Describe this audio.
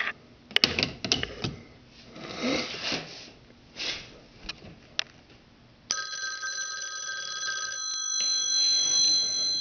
A few sharp cracks followed by a telephone ring